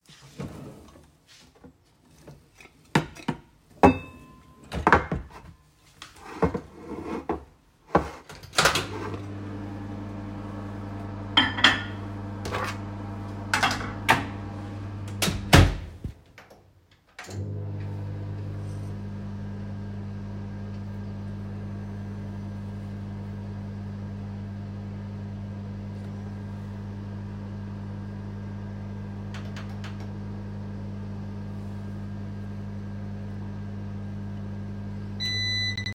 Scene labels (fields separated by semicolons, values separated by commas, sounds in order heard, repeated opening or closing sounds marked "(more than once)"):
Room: kitchen; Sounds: wardrobe or drawer, cutlery and dishes, microwave